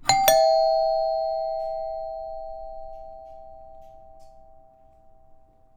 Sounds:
alarm
doorbell
door
domestic sounds

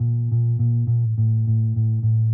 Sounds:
bass guitar
plucked string instrument
musical instrument
music
guitar

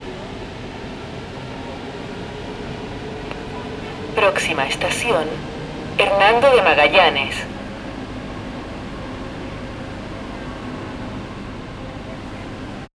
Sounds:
rail transport
subway
vehicle

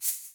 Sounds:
rattle (instrument)
music
musical instrument
percussion

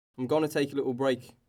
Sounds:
human voice
speech

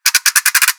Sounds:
musical instrument
music
ratchet
percussion
mechanisms

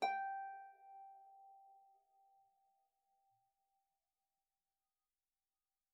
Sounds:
musical instrument
harp
music

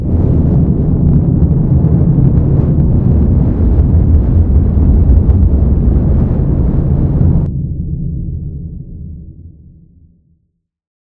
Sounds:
vehicle
aircraft

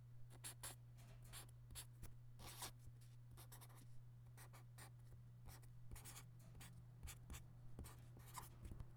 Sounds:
domestic sounds
writing

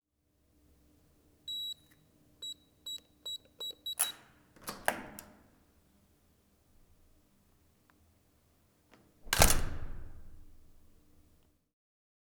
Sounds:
door
slam
domestic sounds

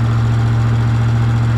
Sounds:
motor vehicle (road)
vehicle
engine
truck

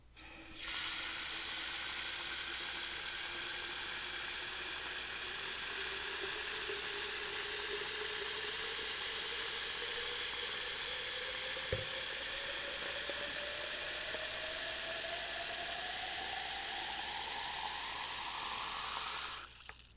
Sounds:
domestic sounds
water tap
liquid
fill (with liquid)

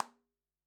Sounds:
hands
clapping

